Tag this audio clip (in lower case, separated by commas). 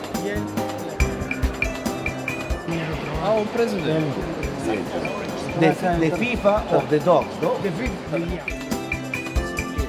music, speech